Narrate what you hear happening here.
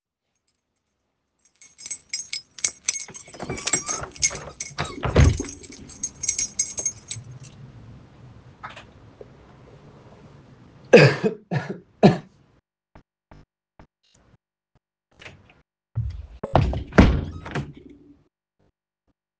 I dangled the keychain as I was opening the window, then I coughed, and closed the window.